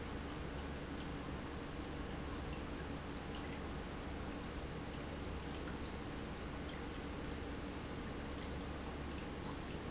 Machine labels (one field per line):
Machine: pump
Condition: normal